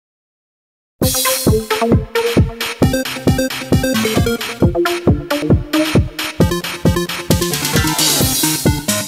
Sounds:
techno, music

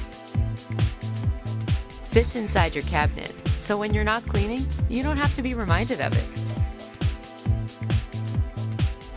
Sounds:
speech, music

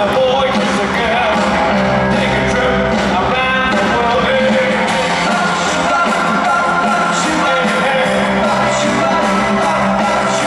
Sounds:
music, rock and roll

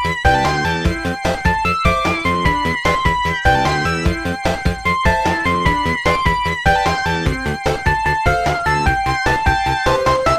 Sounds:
exciting music, music

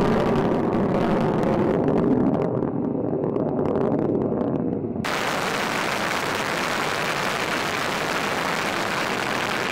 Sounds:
missile launch

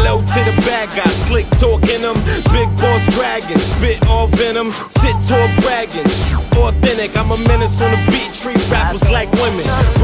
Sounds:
music

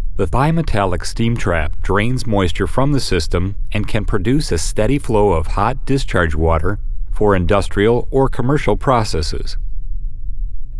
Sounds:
speech

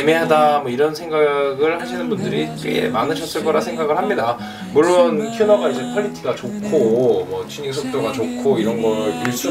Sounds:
speech, music

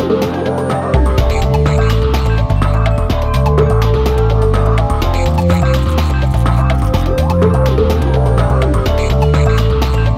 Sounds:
music, video game music

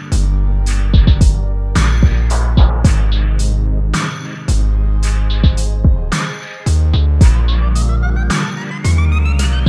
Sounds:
drum machine, musical instrument, music, drum

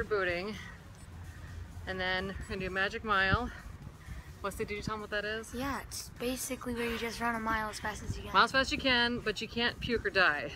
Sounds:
speech

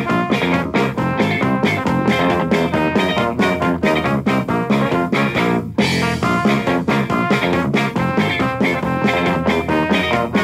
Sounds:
rock music, music, punk rock

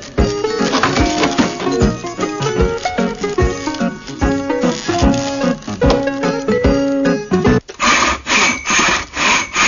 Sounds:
animal, domestic animals, dog

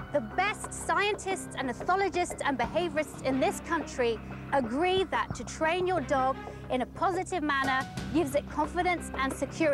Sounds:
speech, music

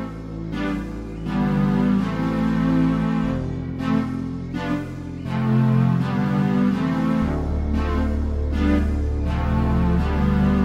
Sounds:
music

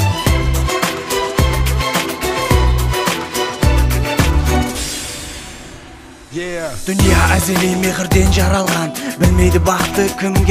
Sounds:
music, soundtrack music

